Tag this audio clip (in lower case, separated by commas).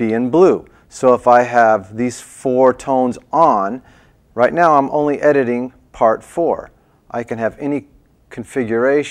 speech